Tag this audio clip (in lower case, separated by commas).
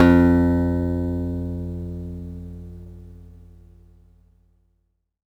musical instrument, music, guitar, acoustic guitar, plucked string instrument